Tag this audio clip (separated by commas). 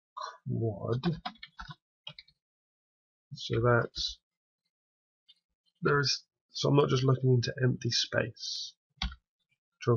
Speech